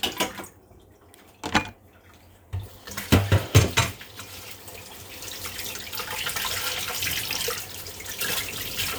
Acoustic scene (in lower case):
kitchen